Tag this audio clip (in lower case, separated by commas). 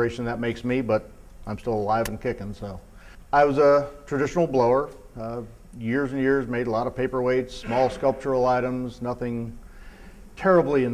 speech